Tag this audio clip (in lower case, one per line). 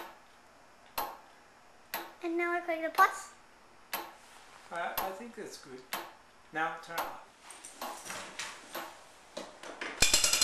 tick
speech